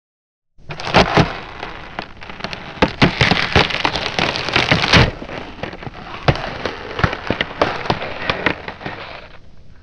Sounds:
crack

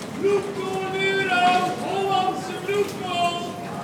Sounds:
human voice, crowd, human group actions

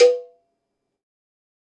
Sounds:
bell, cowbell

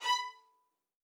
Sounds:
bowed string instrument, music, musical instrument

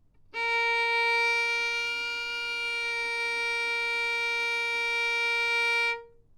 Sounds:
bowed string instrument, musical instrument, music

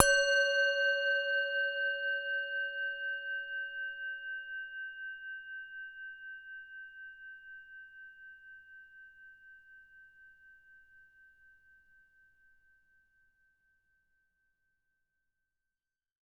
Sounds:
music, musical instrument

